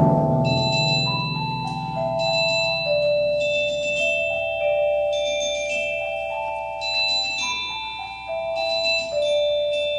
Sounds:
xylophone, glockenspiel, playing marimba, mallet percussion

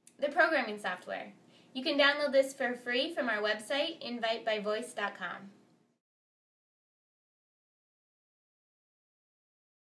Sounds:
speech

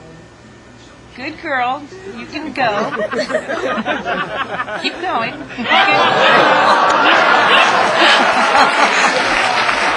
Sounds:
speech

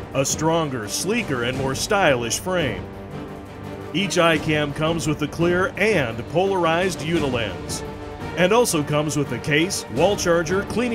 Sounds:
speech, music

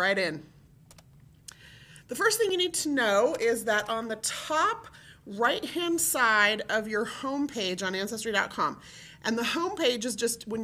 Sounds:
speech

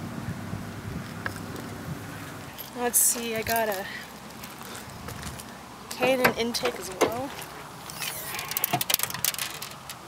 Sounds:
vehicle, speech

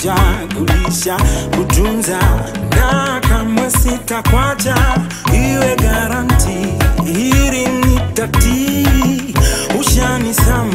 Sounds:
music, afrobeat

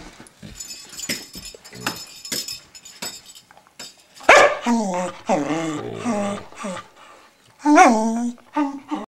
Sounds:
jingle bell

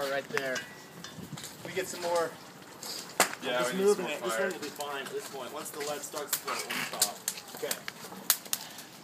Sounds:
speech

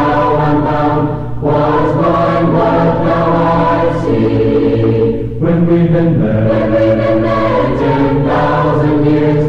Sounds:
music

